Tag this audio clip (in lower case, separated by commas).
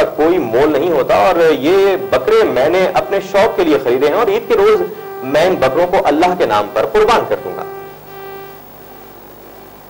speech